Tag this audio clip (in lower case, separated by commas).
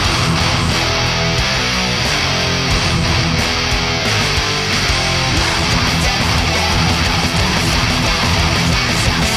guitar, musical instrument, music